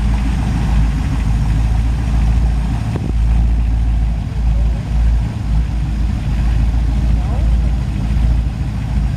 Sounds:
speech

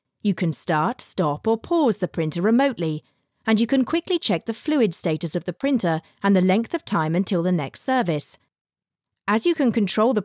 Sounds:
speech

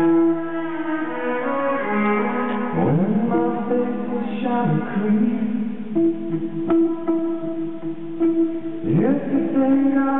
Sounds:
music, inside a large room or hall, singing

